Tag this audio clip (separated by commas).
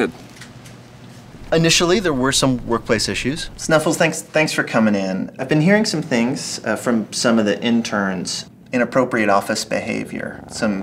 Speech